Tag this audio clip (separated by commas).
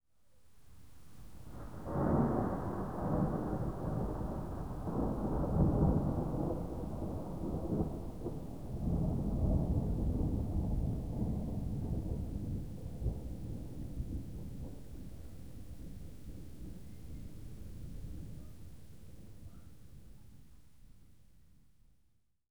Thunder, Thunderstorm